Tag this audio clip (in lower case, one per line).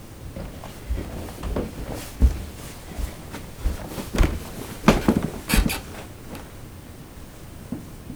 footsteps